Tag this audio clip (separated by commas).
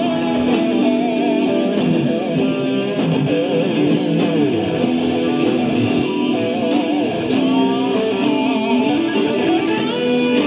Guitar, Plucked string instrument, Electric guitar, Musical instrument, playing electric guitar, Music